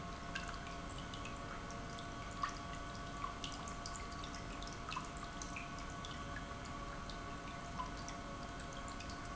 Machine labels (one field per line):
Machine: pump